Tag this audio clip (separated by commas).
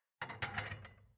dishes, pots and pans, Domestic sounds